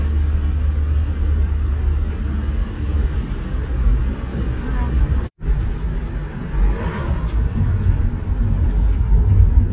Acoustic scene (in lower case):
car